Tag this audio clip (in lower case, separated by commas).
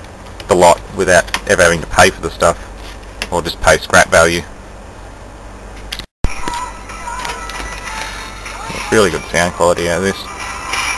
speech, music